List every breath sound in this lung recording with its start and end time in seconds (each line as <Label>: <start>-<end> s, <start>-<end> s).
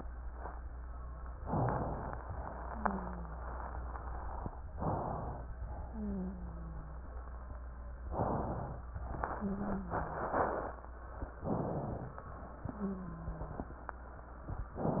Inhalation: 1.35-2.24 s, 4.72-5.54 s, 8.06-8.88 s, 11.44-12.26 s
Wheeze: 2.64-3.53 s, 5.83-7.02 s, 9.35-10.34 s, 12.71-13.70 s